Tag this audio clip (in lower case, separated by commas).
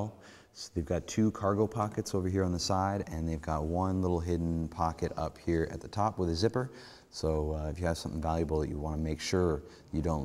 speech